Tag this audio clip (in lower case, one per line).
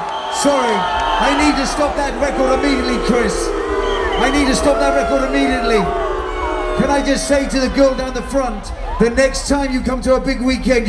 speech